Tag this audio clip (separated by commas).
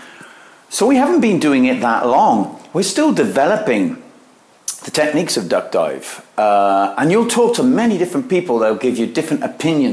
Speech